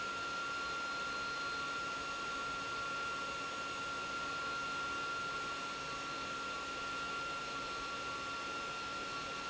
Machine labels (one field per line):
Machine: pump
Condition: abnormal